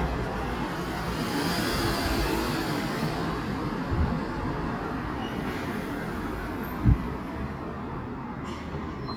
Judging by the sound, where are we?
in a residential area